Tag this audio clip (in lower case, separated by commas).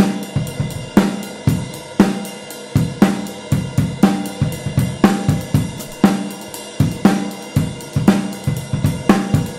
bass drum, drum kit, rimshot, drum, snare drum, percussion